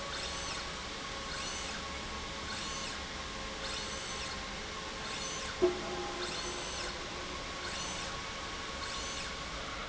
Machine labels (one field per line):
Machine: slide rail